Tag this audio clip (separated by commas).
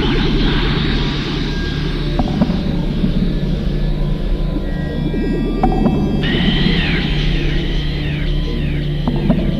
Ambient music, Electronic music, Music, Speech